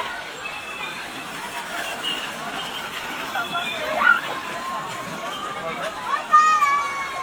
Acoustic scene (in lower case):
park